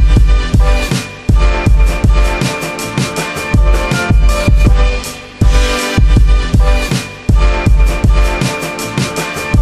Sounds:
Music, Electronica

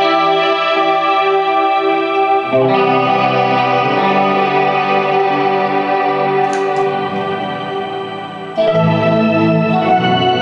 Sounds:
Music

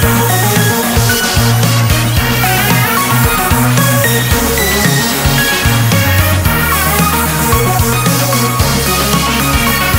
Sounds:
Theme music, Music

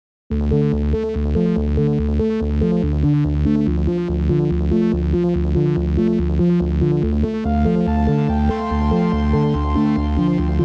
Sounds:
Synthesizer, Music

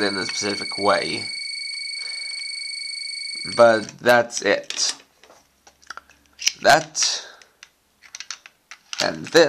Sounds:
inside a small room, Speech

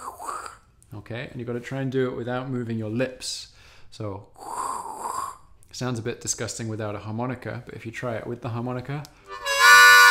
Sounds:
Speech, Musical instrument, Music, Harmonica

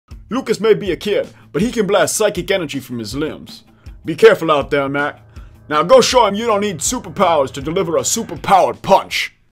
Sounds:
Speech, Music

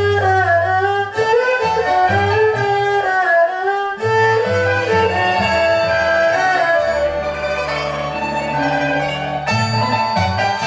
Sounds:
playing erhu

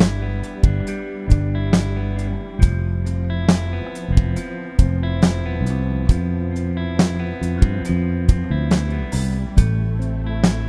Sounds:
Music

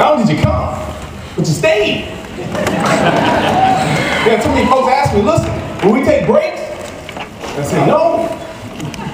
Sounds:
inside a large room or hall, Speech

